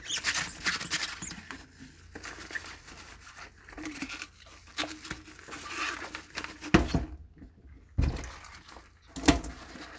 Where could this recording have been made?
in a kitchen